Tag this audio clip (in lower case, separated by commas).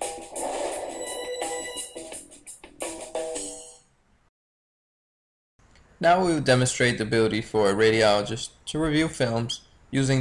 speech, monologue, music, male speech